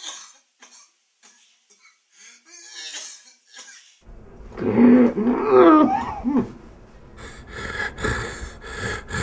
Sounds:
cough
inside a small room

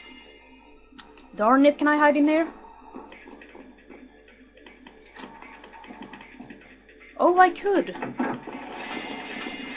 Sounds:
speech
tick-tock

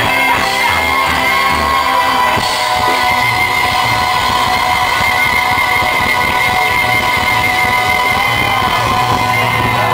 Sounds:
music
inside a large room or hall
shout

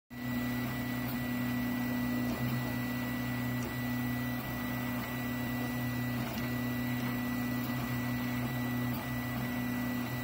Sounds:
printer printing

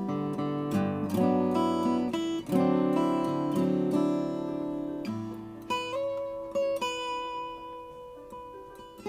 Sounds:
music
acoustic guitar
playing acoustic guitar

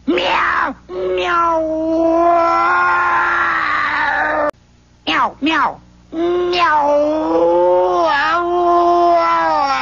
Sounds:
meow

